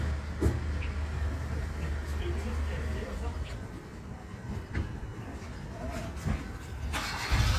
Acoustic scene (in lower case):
residential area